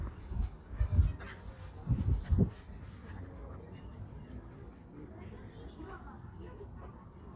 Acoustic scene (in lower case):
park